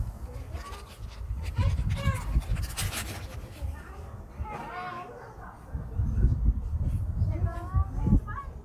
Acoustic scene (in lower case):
park